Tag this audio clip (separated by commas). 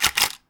Mechanisms, Camera